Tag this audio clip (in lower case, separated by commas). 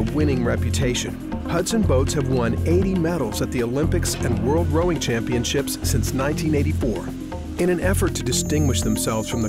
music, speech